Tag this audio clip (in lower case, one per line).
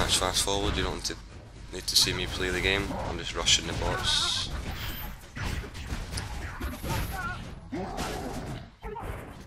speech